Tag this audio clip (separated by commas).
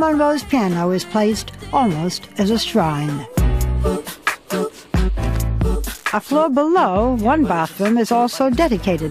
Speech, Music